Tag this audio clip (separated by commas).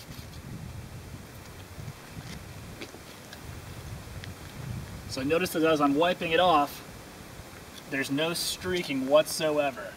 Speech